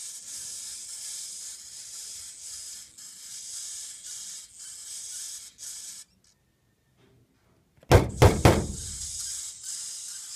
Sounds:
snake hissing

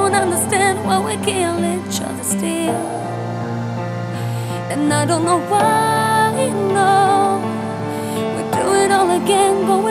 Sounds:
music

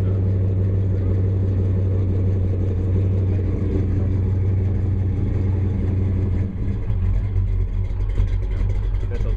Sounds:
speech, clatter

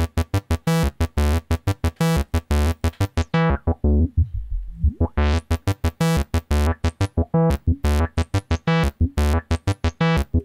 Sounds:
playing synthesizer, musical instrument, music, synthesizer

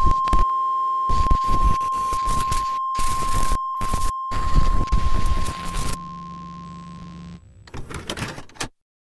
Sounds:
white noise

